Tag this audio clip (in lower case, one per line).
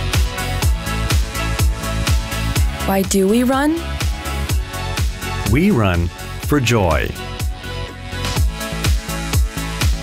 speech
music